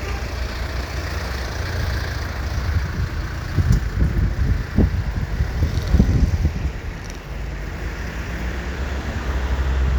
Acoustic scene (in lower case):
street